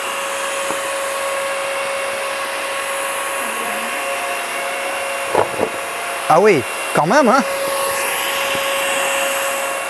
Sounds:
vacuum cleaner cleaning floors

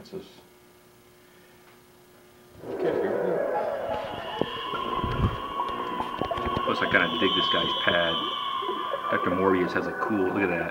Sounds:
Television, Speech, inside a small room

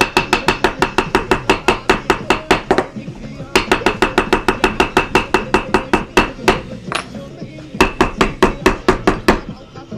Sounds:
thwack

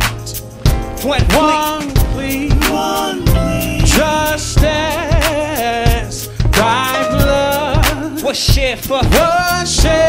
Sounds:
Music, Male singing

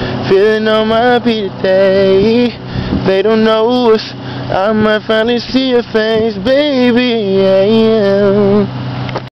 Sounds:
Male singing

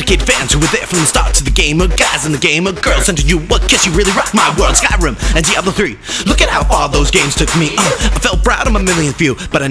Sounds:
Music, Electronic music, Dubstep, Independent music

